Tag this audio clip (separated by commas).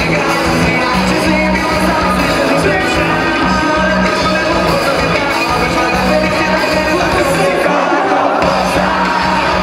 Music, Middle Eastern music